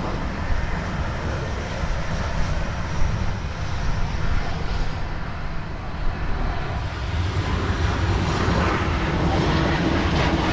A very large vehicle engine is running and roars